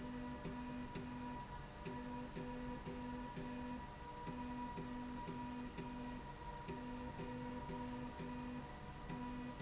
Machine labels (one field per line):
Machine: slide rail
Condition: normal